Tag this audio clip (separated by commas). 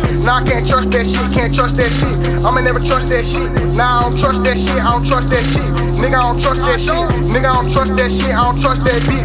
Pop music, Music